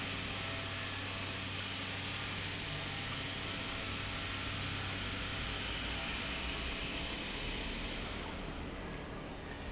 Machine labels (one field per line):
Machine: pump